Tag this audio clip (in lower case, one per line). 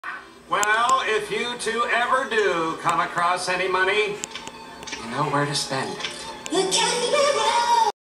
speech